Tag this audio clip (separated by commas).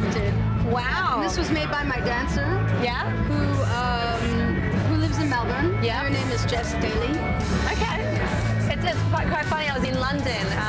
Speech, Music